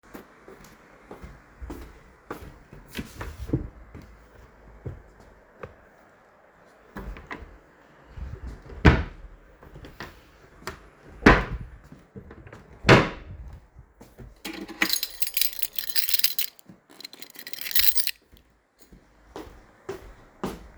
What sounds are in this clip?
footsteps, wardrobe or drawer, keys